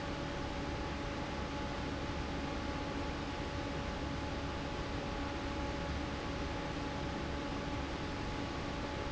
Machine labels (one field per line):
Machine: fan